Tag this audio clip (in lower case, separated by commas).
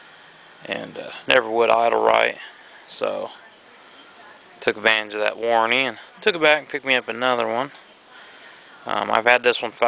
speech